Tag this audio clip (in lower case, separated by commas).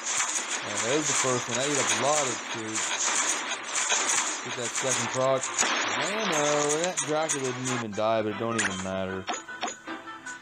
speech, music